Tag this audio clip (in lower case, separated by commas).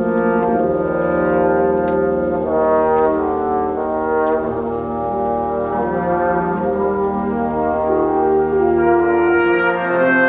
brass instrument